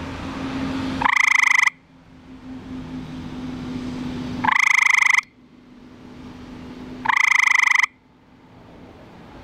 A frog is croaking